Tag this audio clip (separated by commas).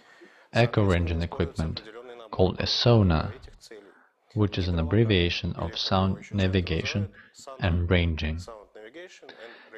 Speech